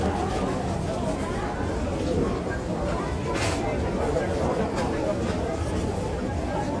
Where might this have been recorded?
in a crowded indoor space